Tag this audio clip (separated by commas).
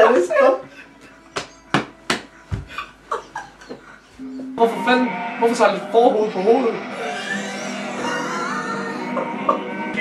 Music, Speech, Sheep, Bleat